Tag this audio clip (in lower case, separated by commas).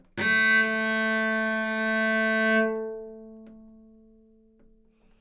music, musical instrument, bowed string instrument